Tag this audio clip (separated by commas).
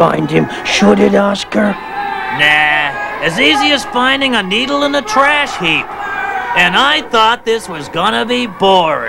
Speech